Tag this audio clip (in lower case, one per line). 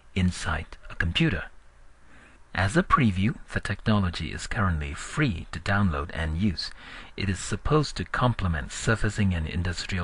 speech